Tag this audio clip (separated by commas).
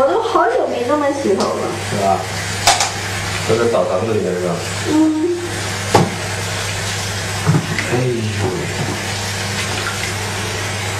Water